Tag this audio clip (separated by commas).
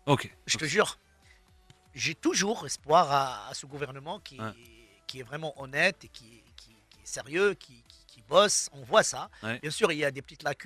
Speech